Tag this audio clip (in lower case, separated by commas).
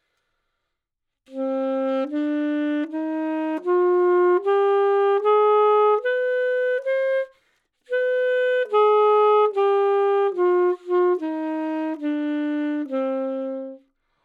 music, musical instrument, wind instrument